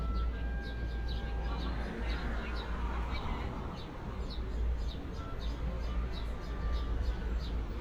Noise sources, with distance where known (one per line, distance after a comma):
music from an unclear source
person or small group talking